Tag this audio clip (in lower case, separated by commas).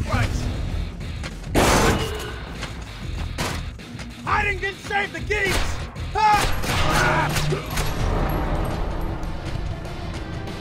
music, thump, speech